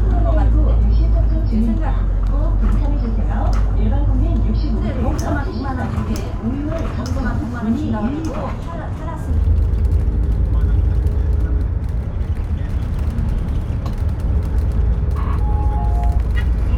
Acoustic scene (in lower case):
bus